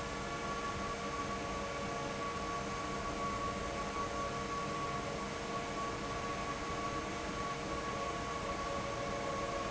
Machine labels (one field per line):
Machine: fan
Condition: abnormal